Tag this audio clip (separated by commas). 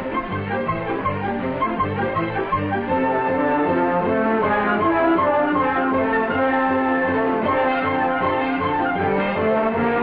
French horn